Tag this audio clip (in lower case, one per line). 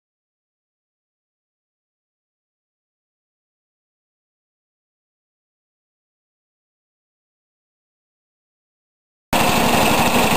vehicle